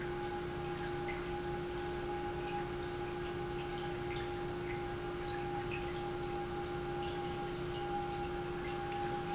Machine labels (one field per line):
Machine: pump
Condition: normal